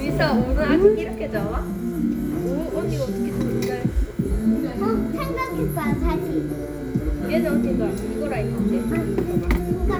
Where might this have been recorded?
in a restaurant